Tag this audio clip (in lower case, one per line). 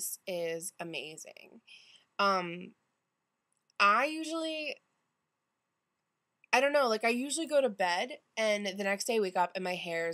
speech